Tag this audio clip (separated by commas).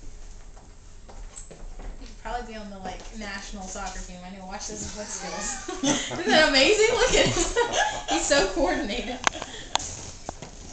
Speech